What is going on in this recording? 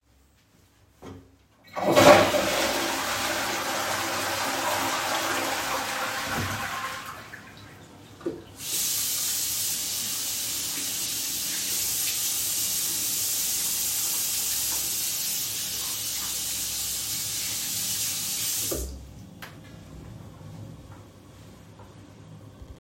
I flushed the toilet, turned on the water, washed my hands, turned off the water, and dried my hands.